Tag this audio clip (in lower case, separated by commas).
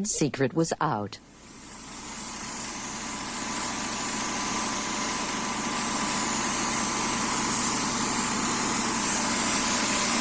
engine